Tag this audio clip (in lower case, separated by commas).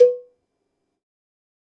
cowbell, bell